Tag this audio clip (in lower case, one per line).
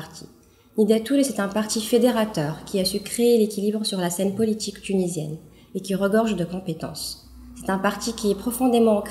speech